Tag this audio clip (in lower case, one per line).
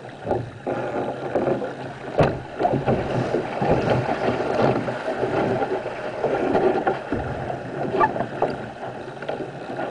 sailing ship